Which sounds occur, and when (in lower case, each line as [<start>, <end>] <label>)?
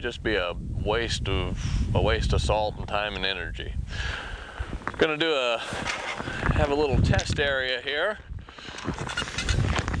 [0.00, 10.00] background noise
[0.05, 0.56] male speech
[0.74, 1.63] male speech
[1.94, 3.59] male speech
[4.99, 5.65] male speech
[6.60, 8.20] male speech